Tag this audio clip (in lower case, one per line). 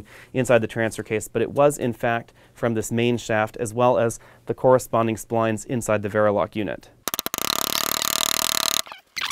speech